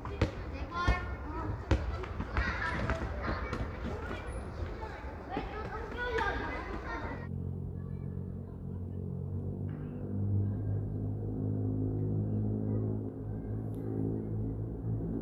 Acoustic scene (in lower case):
residential area